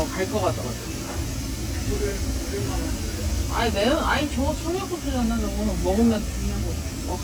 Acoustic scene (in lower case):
crowded indoor space